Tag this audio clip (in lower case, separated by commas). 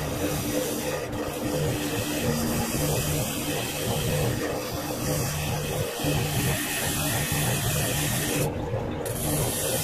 inside a small room, wood, tools